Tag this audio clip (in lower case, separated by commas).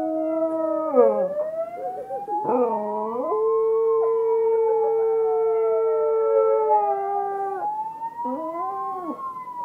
emergency vehicle, police car (siren), siren